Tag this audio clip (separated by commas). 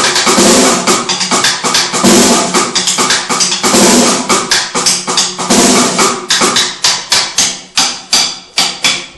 Drum roll, Music